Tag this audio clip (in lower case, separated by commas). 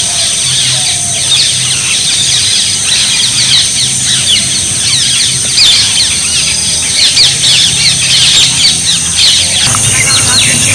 bird